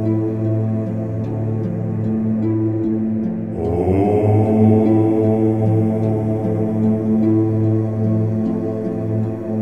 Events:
[0.00, 9.61] music
[3.56, 9.61] chant

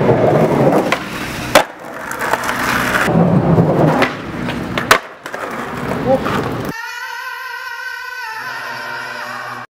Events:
[0.00, 6.62] skateboard
[6.70, 9.59] music

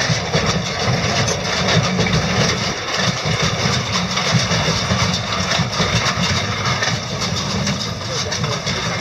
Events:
[0.00, 9.00] vehicle
[0.00, 9.00] wind
[8.03, 9.00] male speech

